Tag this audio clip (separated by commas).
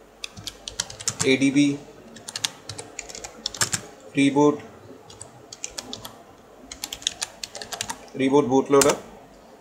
Speech, inside a small room